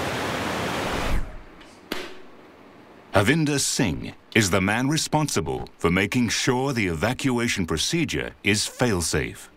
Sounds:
Speech, inside a large room or hall

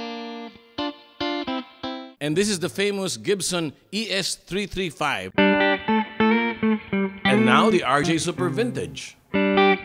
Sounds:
Guitar, Musical instrument, Music, Plucked string instrument, Speech, Electric guitar, Strum

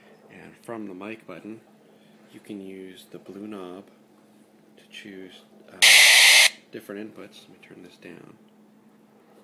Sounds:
Speech, Radio

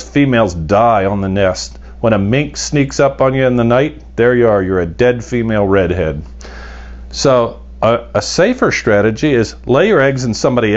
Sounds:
Speech

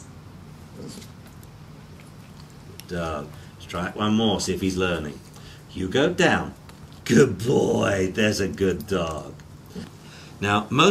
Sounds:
Speech

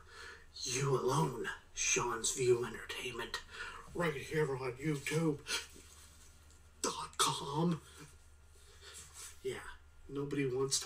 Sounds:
inside a small room, Speech

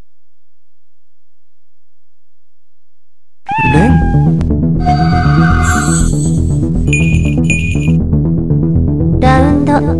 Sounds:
Speech, Music

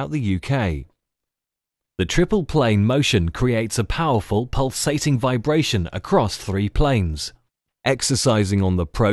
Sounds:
Speech

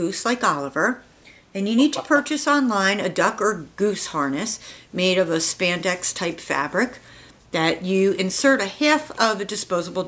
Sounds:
Speech

